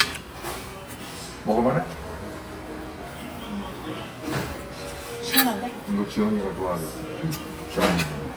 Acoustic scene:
restaurant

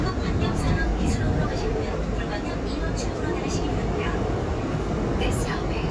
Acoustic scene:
subway train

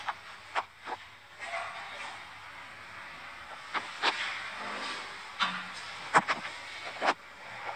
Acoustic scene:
elevator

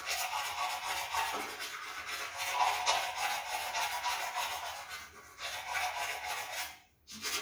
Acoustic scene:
restroom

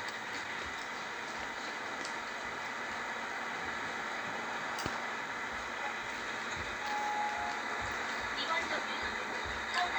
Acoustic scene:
bus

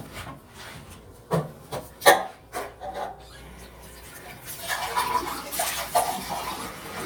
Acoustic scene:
restroom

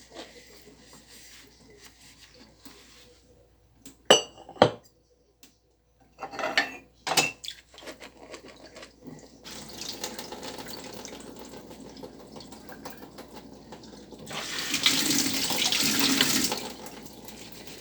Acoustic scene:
kitchen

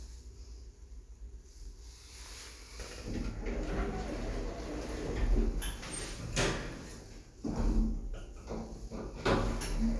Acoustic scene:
elevator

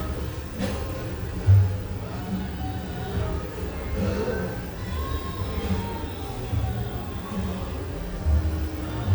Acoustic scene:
cafe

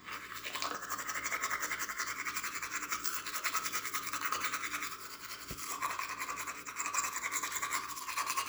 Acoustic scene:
restroom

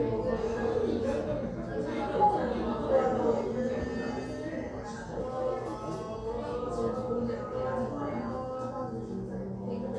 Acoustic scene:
crowded indoor space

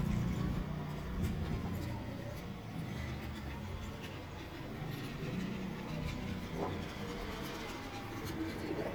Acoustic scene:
residential area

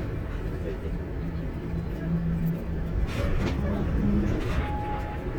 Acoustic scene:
bus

